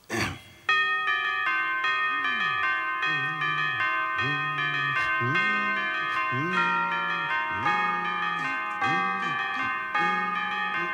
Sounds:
Music

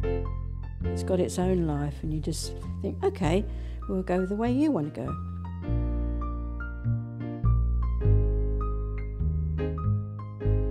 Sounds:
Music, Speech

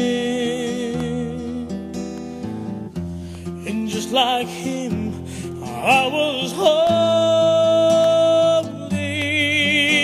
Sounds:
Gospel music, Music

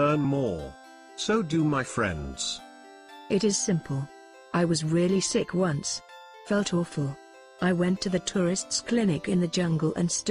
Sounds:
Music, Speech, Conversation

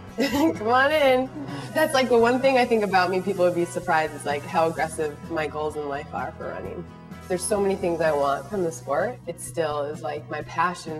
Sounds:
Music, inside a small room, Speech

